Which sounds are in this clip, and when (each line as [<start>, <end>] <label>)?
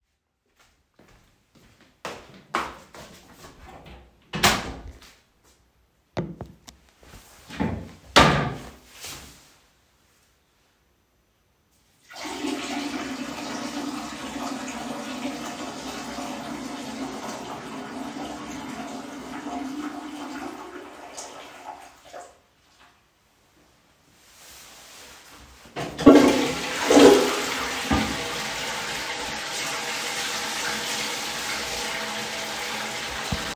[0.13, 4.08] footsteps
[3.59, 4.98] door
[4.98, 5.54] footsteps
[25.81, 33.56] toilet flushing
[29.55, 33.56] running water